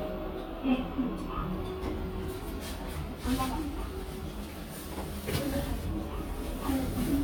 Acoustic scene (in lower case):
elevator